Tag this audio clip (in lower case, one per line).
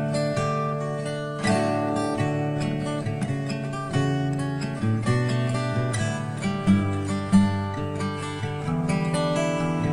acoustic guitar
musical instrument
music
plucked string instrument
guitar
strum